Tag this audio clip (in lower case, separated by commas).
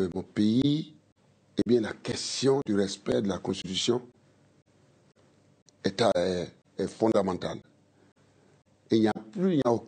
speech